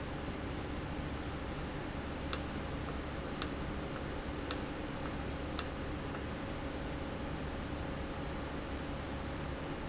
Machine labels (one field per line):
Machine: valve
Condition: normal